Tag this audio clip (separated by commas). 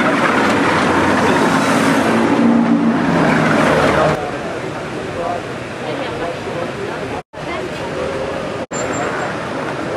Speech